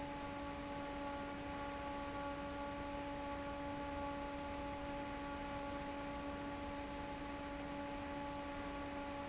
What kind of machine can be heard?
fan